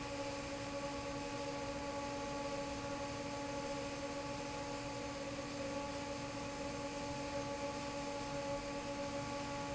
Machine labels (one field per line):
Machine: fan